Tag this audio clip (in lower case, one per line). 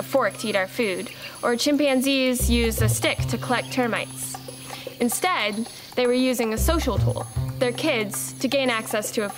speech
music